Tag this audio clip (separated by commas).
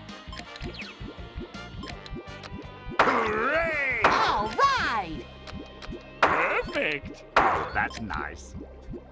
Speech